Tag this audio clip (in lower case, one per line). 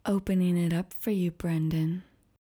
speech
woman speaking
human voice